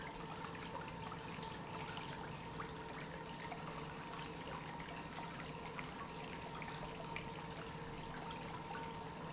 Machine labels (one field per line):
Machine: pump